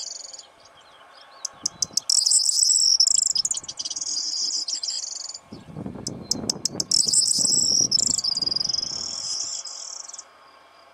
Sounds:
mynah bird singing

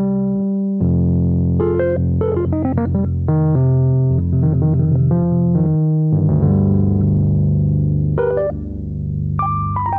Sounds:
musical instrument, piano, synthesizer, keyboard (musical), music, sampler, electric piano

